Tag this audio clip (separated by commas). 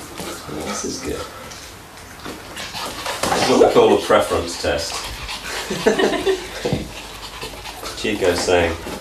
Dog, pets, Speech, Animal